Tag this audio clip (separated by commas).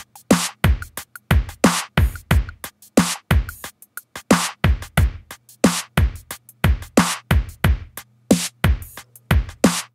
Musical instrument, Music, Drum machine